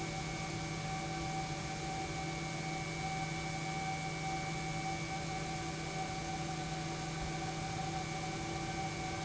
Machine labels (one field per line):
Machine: pump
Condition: normal